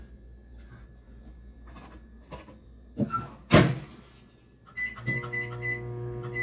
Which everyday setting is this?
kitchen